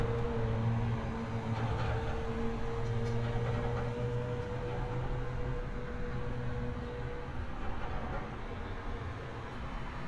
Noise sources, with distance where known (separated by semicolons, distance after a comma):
engine of unclear size, near